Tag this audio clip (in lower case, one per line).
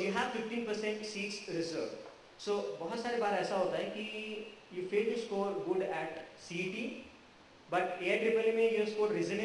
speech
male speech